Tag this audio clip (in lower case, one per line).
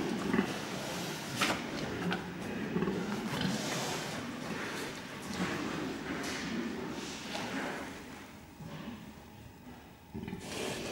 oink